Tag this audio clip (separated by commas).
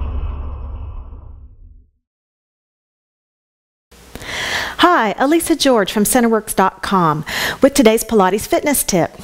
Speech, inside a large room or hall